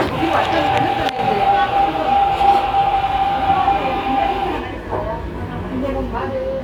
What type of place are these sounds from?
cafe